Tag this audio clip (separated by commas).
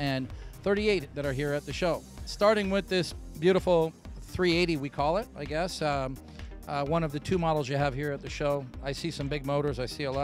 Speech, Music